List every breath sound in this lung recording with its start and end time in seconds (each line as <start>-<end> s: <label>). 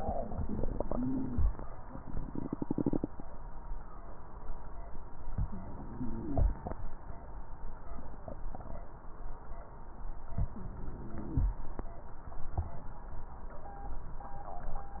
0.86-1.41 s: inhalation
0.86-1.41 s: wheeze
5.36-6.41 s: inhalation
5.36-6.41 s: crackles
10.37-11.51 s: inhalation
10.52-11.38 s: wheeze